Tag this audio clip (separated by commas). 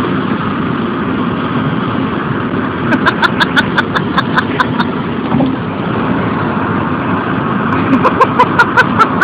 Wind noise (microphone), Wind